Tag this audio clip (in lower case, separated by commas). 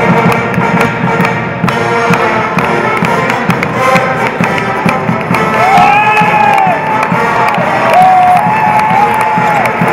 cheering, music